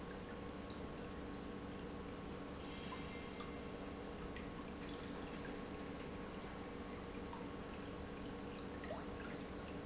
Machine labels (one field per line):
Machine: pump